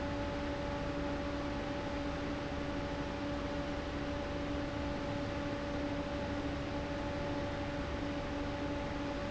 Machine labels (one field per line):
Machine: fan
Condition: abnormal